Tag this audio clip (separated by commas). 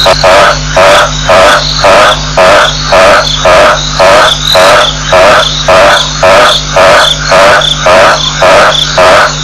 Bird